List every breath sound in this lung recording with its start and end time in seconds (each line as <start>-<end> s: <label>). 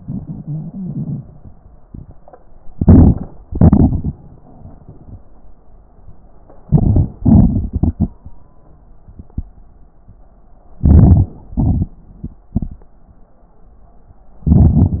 2.68-3.42 s: crackles
2.70-3.47 s: inhalation
3.47-4.24 s: exhalation
3.47-4.24 s: crackles
6.58-7.16 s: inhalation
6.58-7.16 s: crackles
7.20-8.12 s: exhalation
7.20-8.12 s: crackles
10.76-11.51 s: inhalation
10.76-11.51 s: crackles
11.52-12.91 s: exhalation
11.52-12.91 s: crackles
14.42-15.00 s: inhalation
14.42-15.00 s: crackles